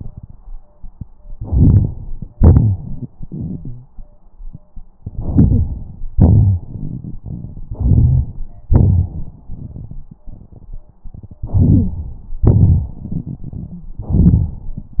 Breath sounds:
1.33-2.32 s: inhalation
2.33-3.95 s: exhalation
2.52-2.78 s: wheeze
3.48-3.90 s: wheeze
5.01-6.09 s: inhalation
6.13-7.71 s: exhalation
7.72-8.71 s: inhalation
8.73-11.06 s: exhalation
11.06-12.43 s: inhalation
11.70-11.90 s: wheeze
12.47-13.91 s: exhalation
13.73-13.91 s: wheeze
14.10-15.00 s: inhalation

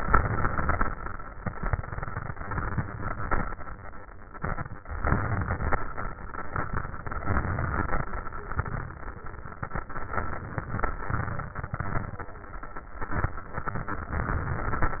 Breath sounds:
0.00-0.87 s: inhalation
4.94-5.81 s: inhalation
7.22-8.09 s: inhalation
14.19-15.00 s: inhalation

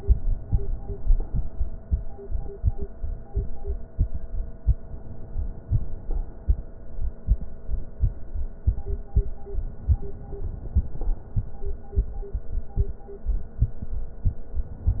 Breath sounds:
9.66-11.02 s: inhalation
11.02-11.64 s: exhalation

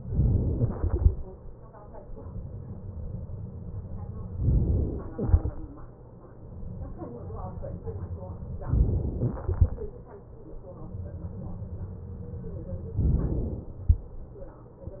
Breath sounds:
0.00-0.85 s: inhalation
0.86-1.96 s: exhalation
4.39-5.00 s: inhalation
5.00-5.90 s: exhalation
8.65-9.46 s: inhalation
9.46-10.78 s: exhalation
12.99-13.82 s: inhalation

